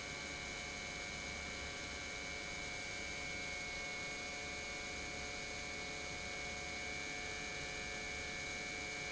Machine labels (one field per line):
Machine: pump